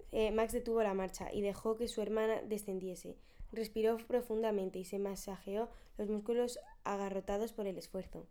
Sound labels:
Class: speech